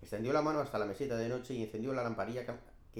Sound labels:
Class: speech